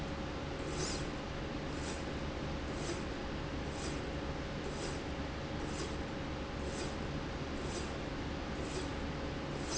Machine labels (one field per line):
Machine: slide rail